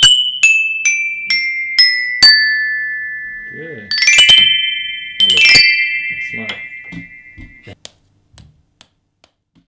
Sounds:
Music, Speech, Musical instrument, Marimba

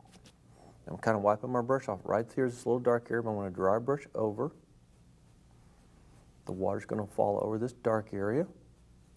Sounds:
Speech

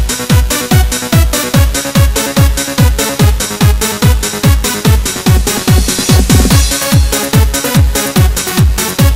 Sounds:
Music, Background music

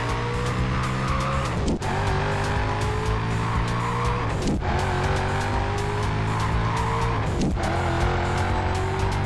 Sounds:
Music

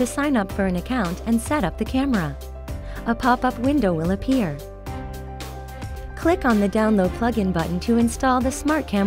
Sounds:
Speech, Music

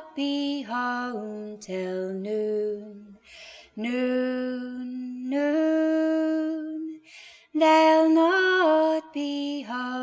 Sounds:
Music

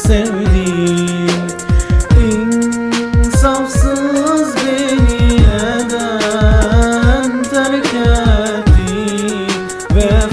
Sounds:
Music, Middle Eastern music

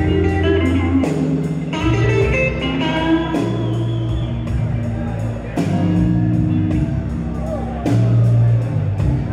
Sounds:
Blues, Music, Speech

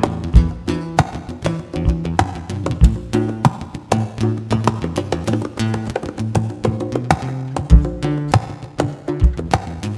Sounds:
Percussion, Wood block, Music

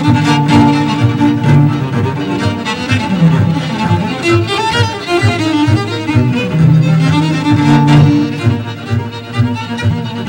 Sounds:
Cello, fiddle, Double bass, Bowed string instrument

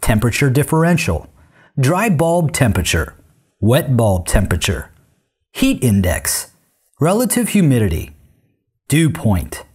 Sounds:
Speech

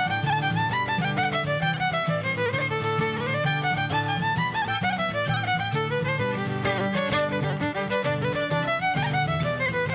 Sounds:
fiddle, Musical instrument, Music

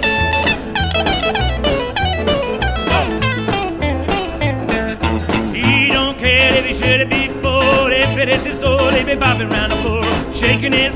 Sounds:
Music

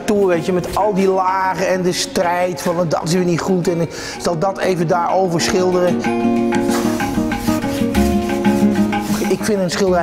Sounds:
Music, Speech

